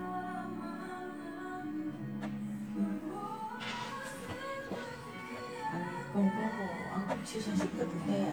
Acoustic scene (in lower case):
cafe